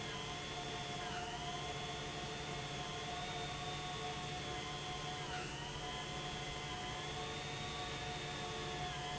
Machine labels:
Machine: pump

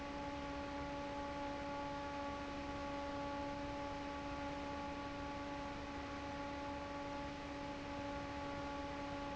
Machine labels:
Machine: fan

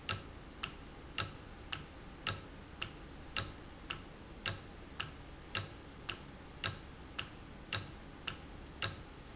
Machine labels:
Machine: valve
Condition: normal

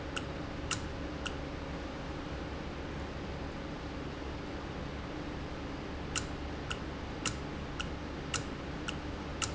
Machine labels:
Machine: valve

